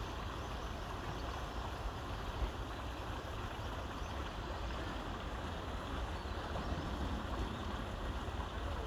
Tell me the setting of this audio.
park